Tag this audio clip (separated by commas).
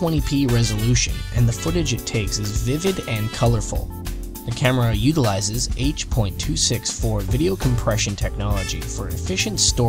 Speech, Music